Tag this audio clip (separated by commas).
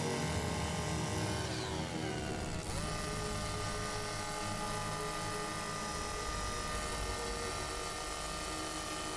Music, outside, urban or man-made